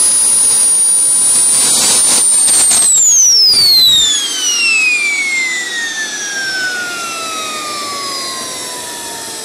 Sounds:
Engine

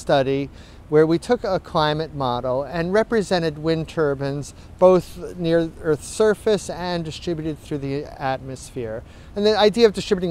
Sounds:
Speech

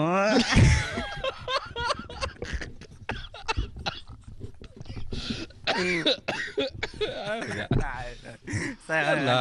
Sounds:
Speech

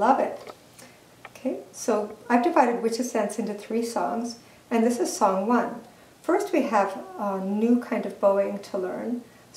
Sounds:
Speech

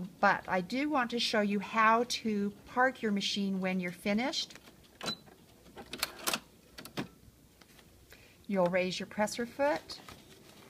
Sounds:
inside a small room, Sewing machine, Speech

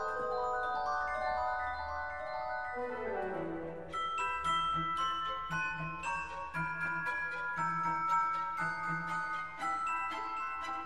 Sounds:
xylophone, Mallet percussion, Glockenspiel

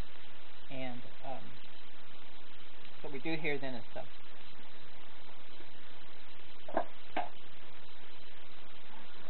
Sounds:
Speech

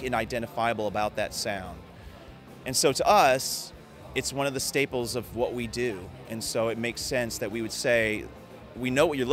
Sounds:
Music, Speech

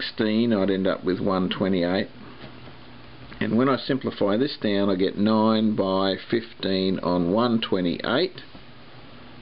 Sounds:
Speech

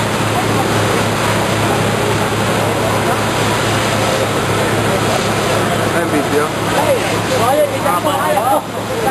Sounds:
Speech, speech babble

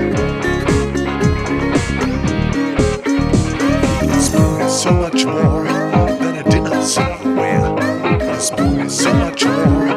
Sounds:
Guitar, Music, Musical instrument, Plucked string instrument

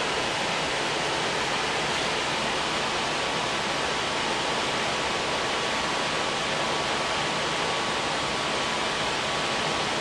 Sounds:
inside a small room, Pink noise

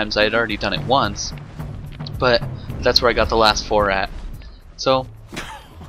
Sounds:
Speech, Music

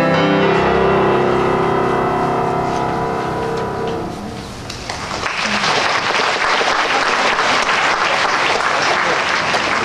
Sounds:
Music, Applause, Piano, Musical instrument

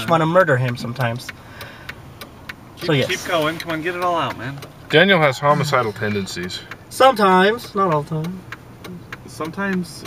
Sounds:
Speech

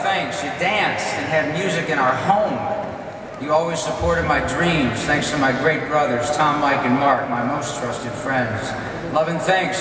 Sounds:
Male speech, monologue, Speech

